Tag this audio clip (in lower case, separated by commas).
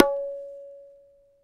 drum, musical instrument, tabla, percussion, music